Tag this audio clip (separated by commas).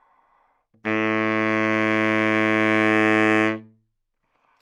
Musical instrument, Music, Wind instrument